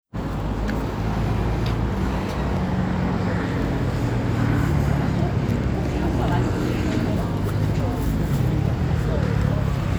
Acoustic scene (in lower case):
street